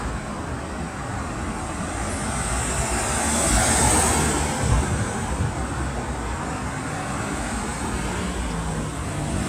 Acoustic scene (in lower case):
street